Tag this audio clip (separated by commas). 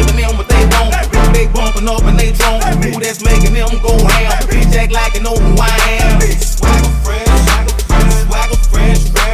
Music